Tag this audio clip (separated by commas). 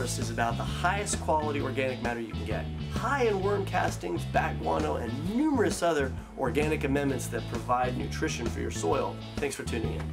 Speech